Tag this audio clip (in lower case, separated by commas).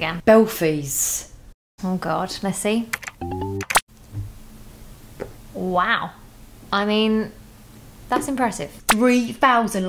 speech